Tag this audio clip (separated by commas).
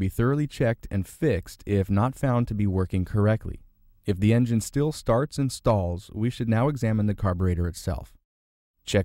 Speech